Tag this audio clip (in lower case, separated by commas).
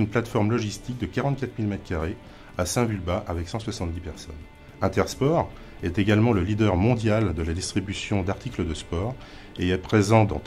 music, speech